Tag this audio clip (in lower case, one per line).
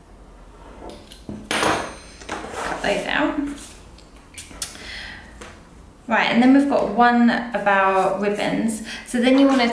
speech